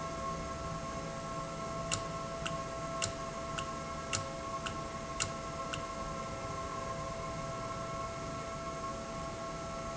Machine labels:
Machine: valve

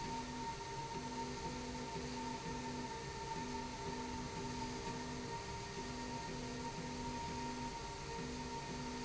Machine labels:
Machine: slide rail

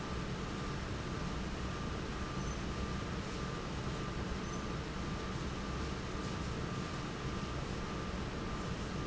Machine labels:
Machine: fan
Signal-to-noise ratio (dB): -6 dB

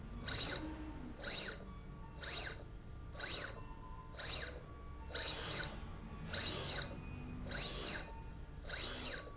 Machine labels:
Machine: slide rail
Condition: abnormal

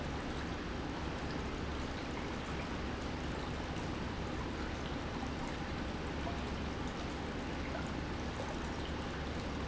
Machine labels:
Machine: pump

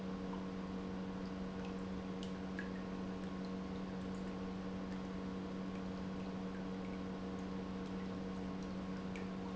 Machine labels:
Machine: pump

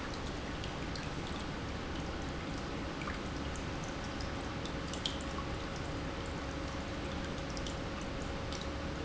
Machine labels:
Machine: pump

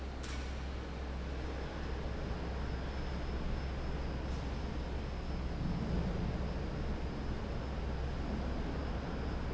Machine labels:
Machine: fan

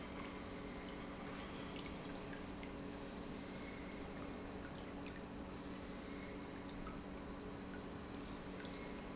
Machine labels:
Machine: pump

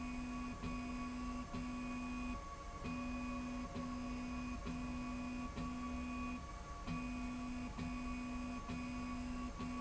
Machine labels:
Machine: slide rail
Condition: normal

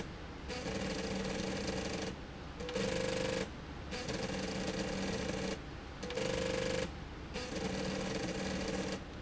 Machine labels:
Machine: slide rail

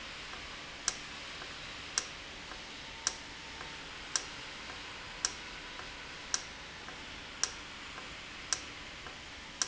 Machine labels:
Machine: valve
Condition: normal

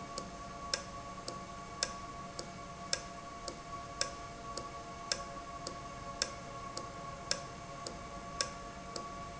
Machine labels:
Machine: valve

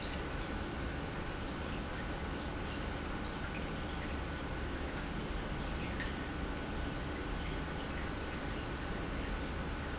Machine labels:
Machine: pump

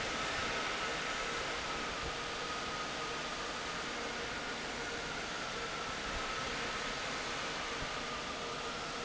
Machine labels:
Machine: fan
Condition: normal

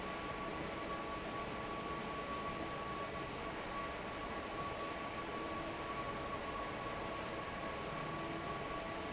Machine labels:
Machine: fan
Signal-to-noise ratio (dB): 0 dB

